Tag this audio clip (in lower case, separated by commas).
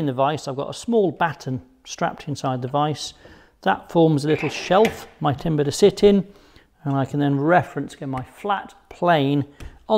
planing timber